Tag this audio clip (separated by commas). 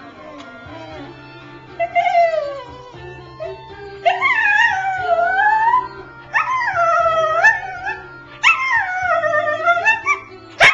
Animal, Music, Dog, Domestic animals